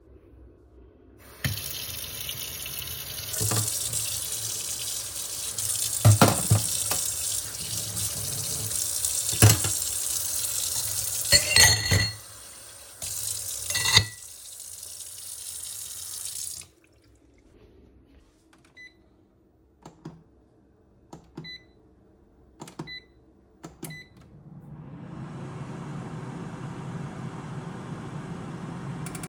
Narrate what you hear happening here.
I turned on the sink, washed 2 forks placed them in the sink, then washed a cup and placed it in another cup in the sink, i turned off the sink, walked to the microwave and turned it on and off.